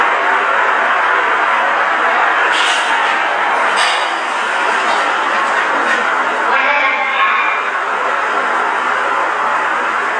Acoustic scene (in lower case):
elevator